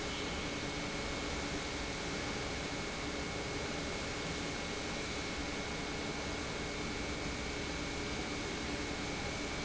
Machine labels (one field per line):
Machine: pump